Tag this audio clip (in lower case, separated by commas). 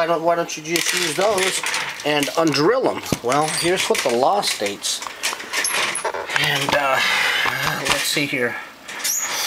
speech, inside a small room